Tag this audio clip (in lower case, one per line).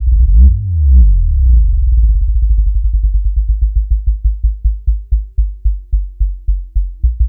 accelerating
engine